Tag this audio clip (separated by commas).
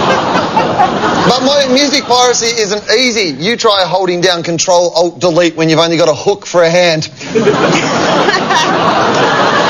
Speech